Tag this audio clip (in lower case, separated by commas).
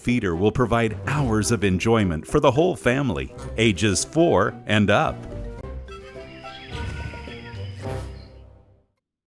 music, speech